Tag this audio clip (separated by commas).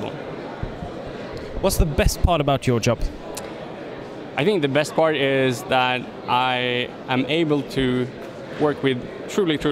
Speech